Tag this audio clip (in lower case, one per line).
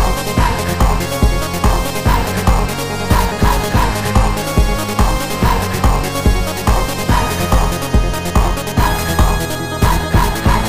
music